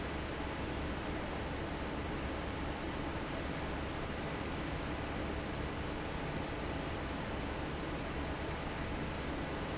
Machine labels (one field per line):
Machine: fan